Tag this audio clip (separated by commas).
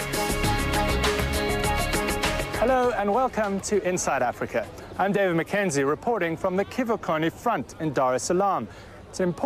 Speech, Music